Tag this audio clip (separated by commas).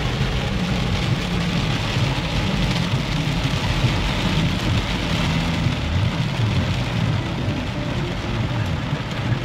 Music, Vehicle, Rain, Car